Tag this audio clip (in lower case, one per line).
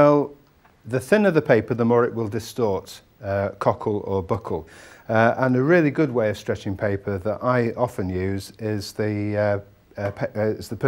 speech